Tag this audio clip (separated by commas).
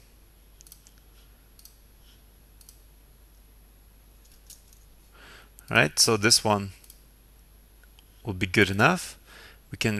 Clicking, inside a small room, Speech